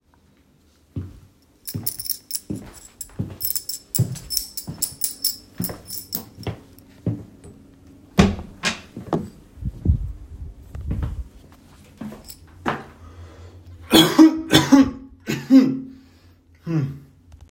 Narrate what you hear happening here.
I walked towards the door. While doing so I played with the keys. Then I opened the door and coughed.